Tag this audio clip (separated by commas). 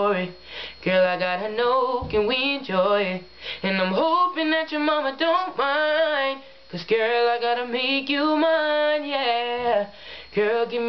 Male singing